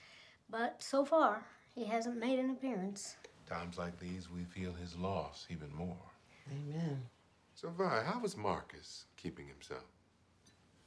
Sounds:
Speech

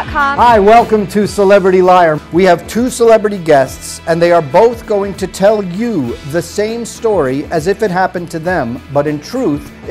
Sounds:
Speech, Music

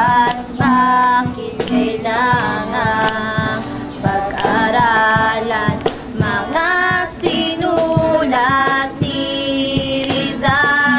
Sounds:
Music

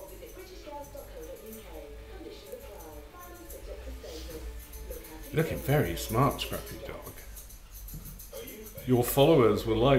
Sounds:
Speech

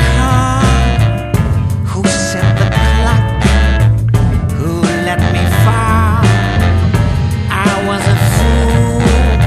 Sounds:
Music

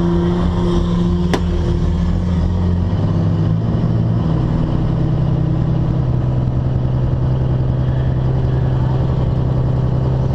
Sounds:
Vehicle

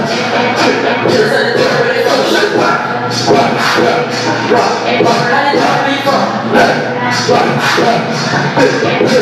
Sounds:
inside a large room or hall, Music

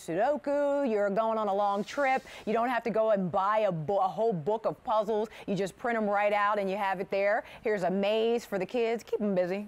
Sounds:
Speech

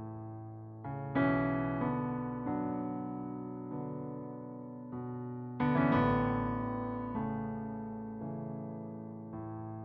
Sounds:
Musical instrument, Electric piano, Piano, Music

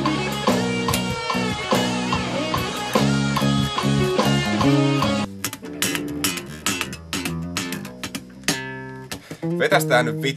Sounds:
Music, Bass guitar, playing bass guitar, Speech

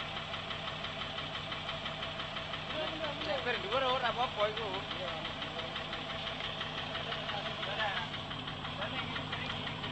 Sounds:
Vehicle, Speech

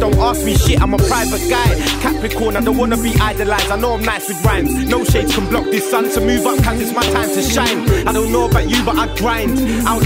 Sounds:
Music

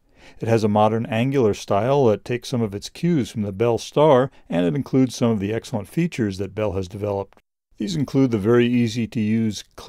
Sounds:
Speech

